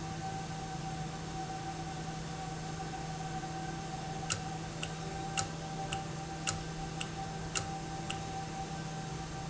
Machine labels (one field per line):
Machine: valve